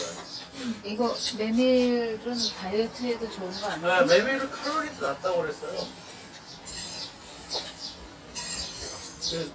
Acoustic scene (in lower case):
restaurant